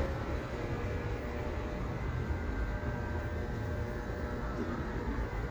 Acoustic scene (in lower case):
residential area